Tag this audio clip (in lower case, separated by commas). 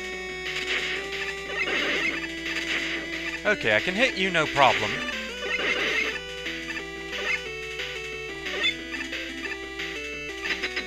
music, speech